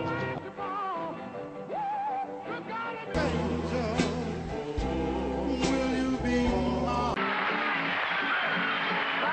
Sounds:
Roll, Music, Rock and roll

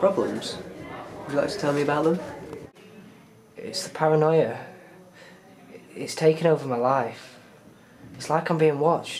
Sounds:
inside a small room, Speech

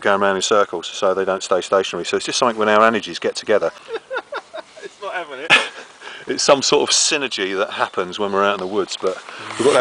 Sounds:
outside, rural or natural, Speech

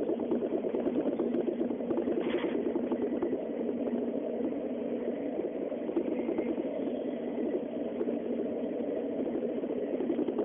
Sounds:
Vehicle, Train

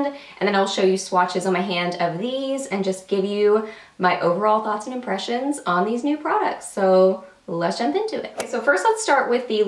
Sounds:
Speech

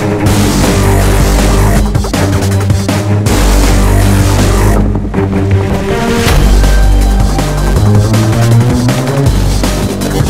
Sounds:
Music

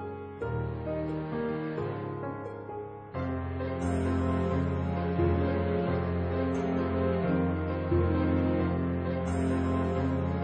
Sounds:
Music

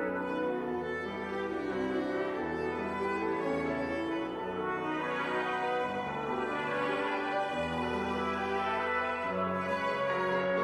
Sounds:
Musical instrument, Music

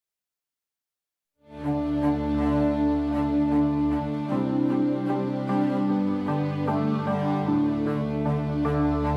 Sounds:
Background music

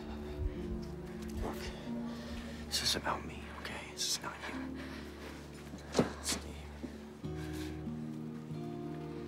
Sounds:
Music, Speech

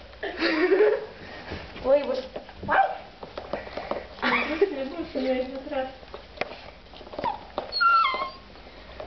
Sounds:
Bow-wow, Speech

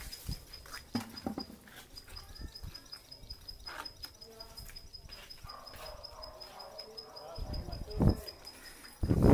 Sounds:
Speech

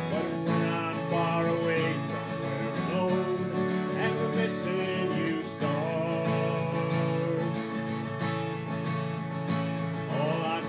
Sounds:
Plucked string instrument, Musical instrument, Acoustic guitar, Guitar, Music

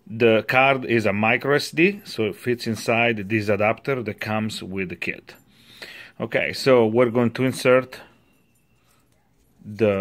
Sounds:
Speech

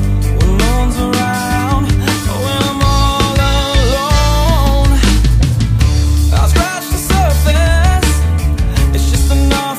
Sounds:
Music

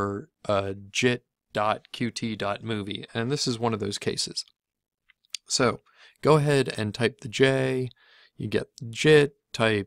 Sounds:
Speech

